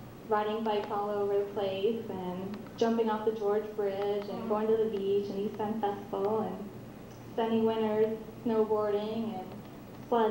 A woman are communicating to someone while she continues to ramble on regarding different situations